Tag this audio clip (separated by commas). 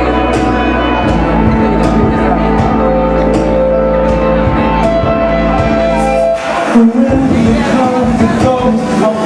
Music, Musical instrument